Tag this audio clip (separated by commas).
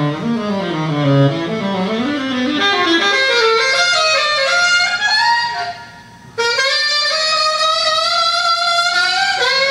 Music, Saxophone, Musical instrument, Brass instrument